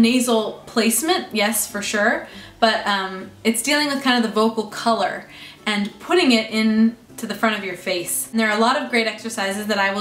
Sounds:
speech

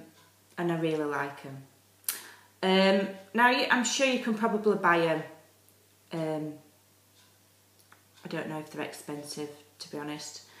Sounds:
speech

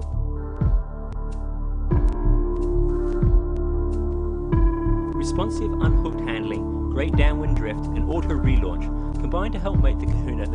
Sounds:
new-age music

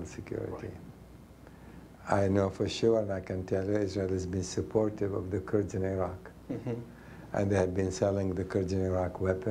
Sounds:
speech

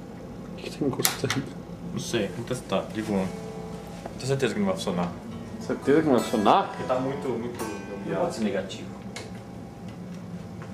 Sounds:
effects unit, speech, guitar, music

